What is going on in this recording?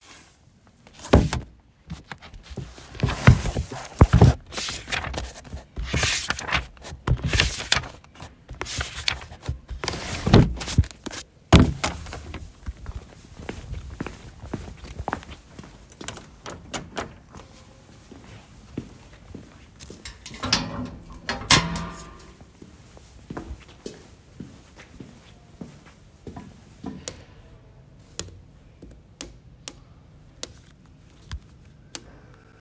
I was near the entrance area and opened a door. Footsteps are audible during the recording. Opening a book, opening the trash bin, and using the self-checkout machine are present as non-target sounds.